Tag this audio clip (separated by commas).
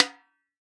Percussion, Music, Drum, Snare drum, Musical instrument